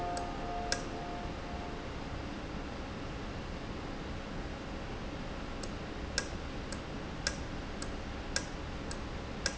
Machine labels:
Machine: valve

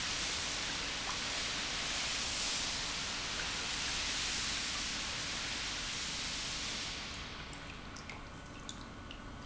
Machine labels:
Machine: pump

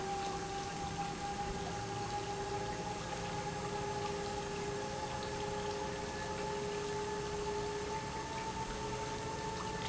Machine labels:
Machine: pump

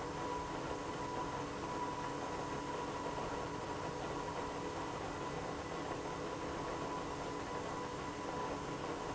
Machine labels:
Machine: pump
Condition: abnormal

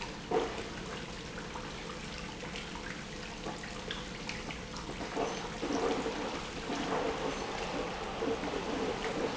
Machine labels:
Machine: pump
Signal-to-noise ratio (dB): 0 dB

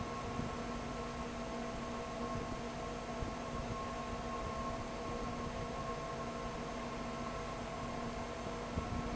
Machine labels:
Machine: fan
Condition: abnormal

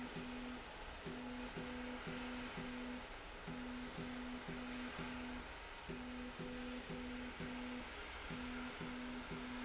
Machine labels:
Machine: slide rail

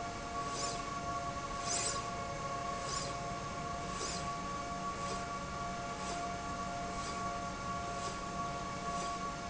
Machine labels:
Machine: slide rail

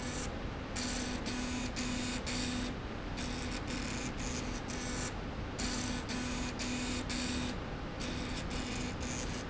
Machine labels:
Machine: slide rail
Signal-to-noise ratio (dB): -6 dB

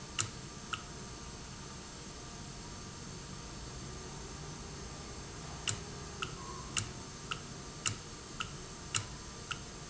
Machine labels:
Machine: valve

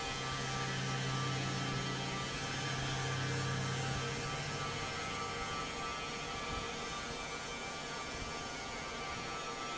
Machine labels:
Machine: fan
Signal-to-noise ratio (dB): -6 dB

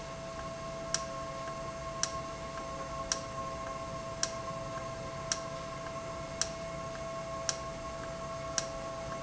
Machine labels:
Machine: valve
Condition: normal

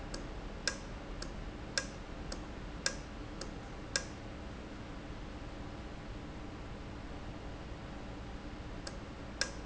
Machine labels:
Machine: valve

